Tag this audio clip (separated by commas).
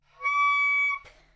Music, Wind instrument, Musical instrument